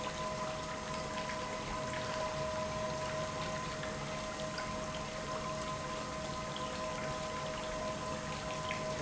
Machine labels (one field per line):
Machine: pump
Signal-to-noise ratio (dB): -6 dB